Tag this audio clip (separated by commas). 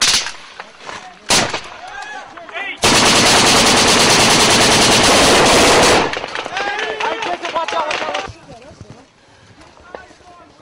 firing cannon